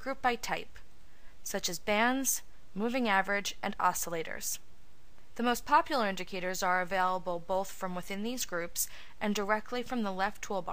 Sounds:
speech

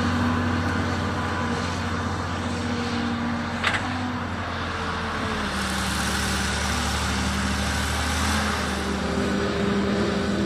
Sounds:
tractor digging

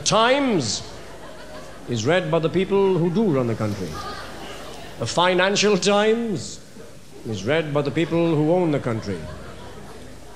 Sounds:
male speech

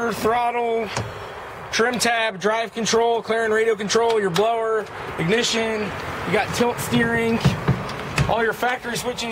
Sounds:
outside, urban or man-made, speech

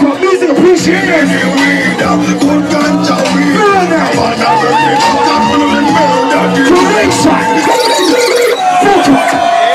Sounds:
music, dubstep, electronic music, speech

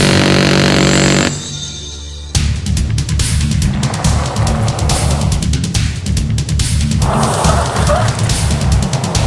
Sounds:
car, vehicle, music, skidding, motor vehicle (road)

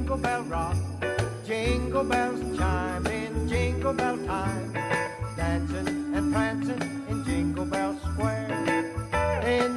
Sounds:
music, jingle bell

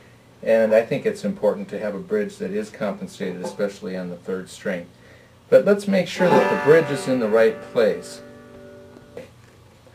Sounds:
banjo, musical instrument, strum

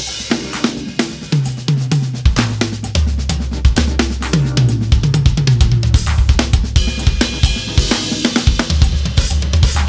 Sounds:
drum, drum kit, music, musical instrument

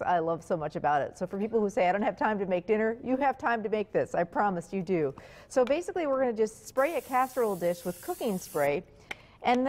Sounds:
speech

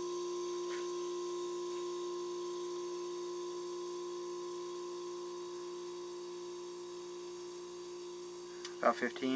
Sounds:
speech

